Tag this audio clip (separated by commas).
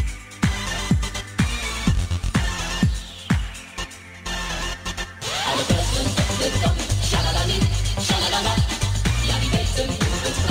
Music